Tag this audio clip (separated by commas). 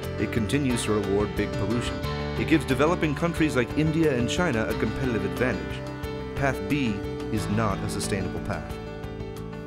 Speech, Music